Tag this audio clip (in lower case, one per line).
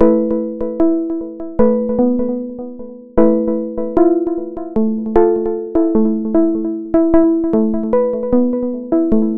music